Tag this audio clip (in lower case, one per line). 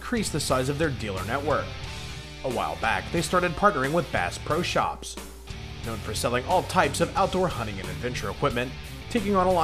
speech
music